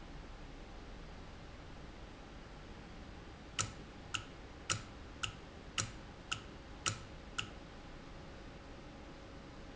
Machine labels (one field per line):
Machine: valve